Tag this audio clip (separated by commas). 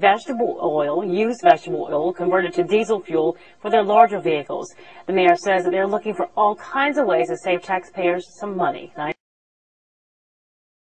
Speech